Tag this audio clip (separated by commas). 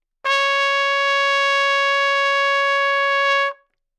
Brass instrument, Music, Trumpet, Musical instrument